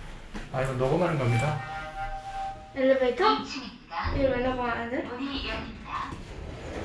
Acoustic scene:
elevator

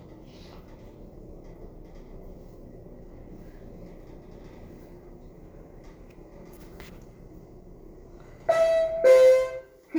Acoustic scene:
elevator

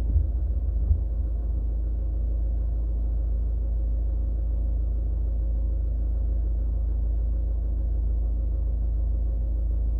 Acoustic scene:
car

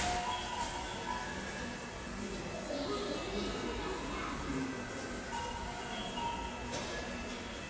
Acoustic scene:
subway station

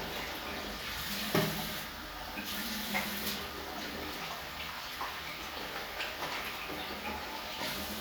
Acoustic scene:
restroom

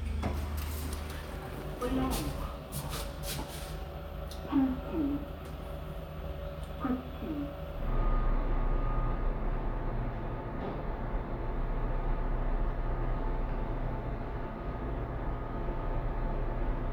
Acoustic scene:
elevator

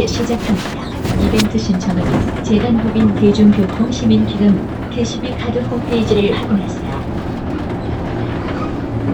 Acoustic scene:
bus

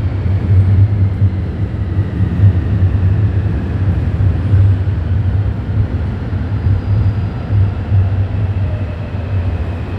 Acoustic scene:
subway station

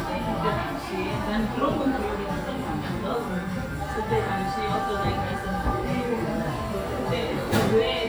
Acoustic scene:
cafe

